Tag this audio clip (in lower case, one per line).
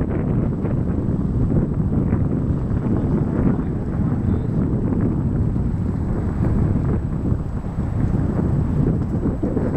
speech